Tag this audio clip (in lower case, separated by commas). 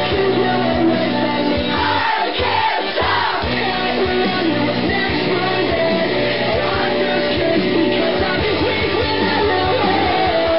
music